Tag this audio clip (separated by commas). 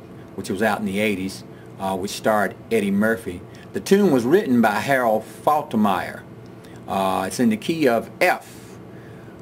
Speech